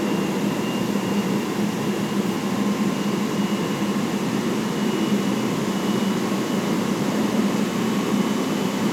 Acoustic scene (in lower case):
subway train